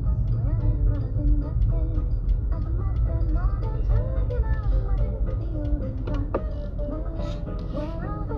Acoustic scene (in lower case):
car